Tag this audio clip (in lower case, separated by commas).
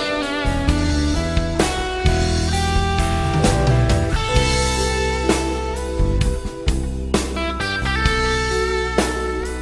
guitar, strum, plucked string instrument, musical instrument, music